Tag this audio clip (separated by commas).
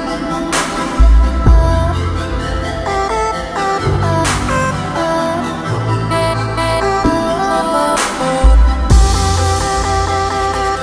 Music